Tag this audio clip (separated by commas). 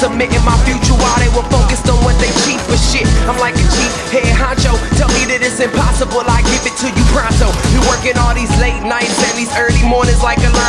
Soundtrack music, Music